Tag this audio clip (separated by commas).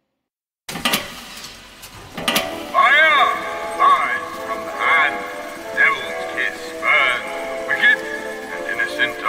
Music, Speech